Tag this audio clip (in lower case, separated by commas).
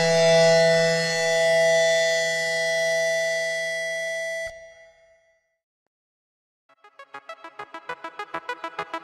siren